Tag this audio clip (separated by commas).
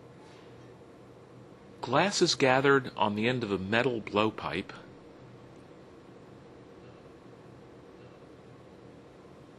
Speech